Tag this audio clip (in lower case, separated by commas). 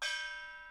percussion, music, musical instrument, gong